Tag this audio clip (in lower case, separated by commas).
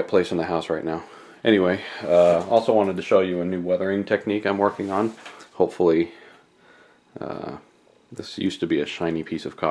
speech